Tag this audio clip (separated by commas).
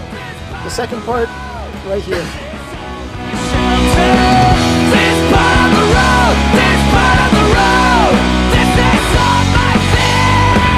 Punk rock, Speech, Music